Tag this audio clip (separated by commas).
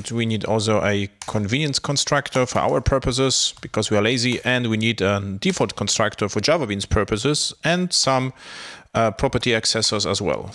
Speech